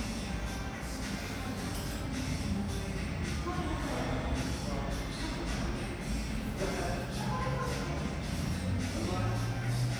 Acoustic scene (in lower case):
cafe